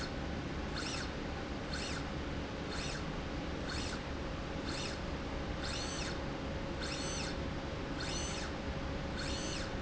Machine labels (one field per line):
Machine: slide rail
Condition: normal